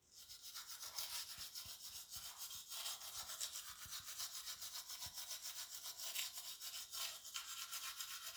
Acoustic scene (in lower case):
restroom